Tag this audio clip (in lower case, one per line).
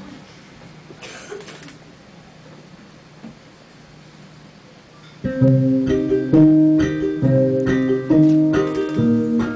musical instrument
inside a large room or hall
music